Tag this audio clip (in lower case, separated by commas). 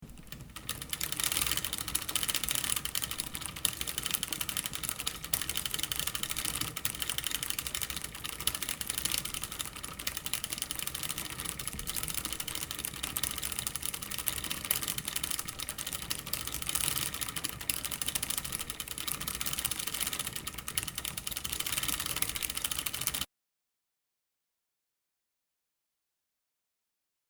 vehicle, mechanisms, bicycle